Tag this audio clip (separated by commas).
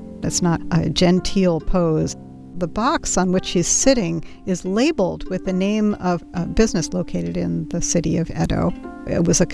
Music, Speech